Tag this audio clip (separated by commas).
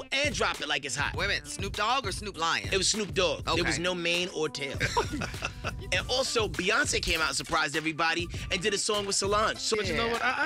Speech, Background music, Music